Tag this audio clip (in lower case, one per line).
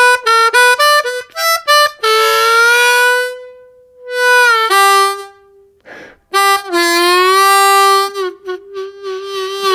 playing harmonica